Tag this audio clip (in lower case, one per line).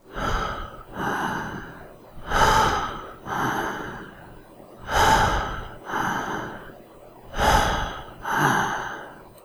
respiratory sounds
breathing